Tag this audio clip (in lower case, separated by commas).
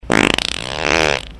fart